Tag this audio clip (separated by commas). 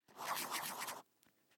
Writing, Domestic sounds